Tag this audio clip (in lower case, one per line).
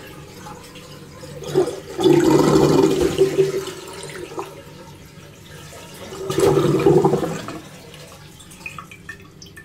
water
sink (filling or washing)